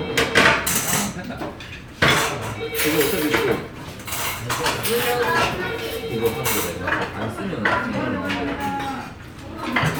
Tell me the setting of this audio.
restaurant